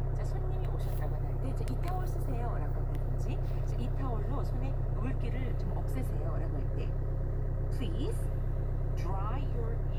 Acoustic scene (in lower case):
car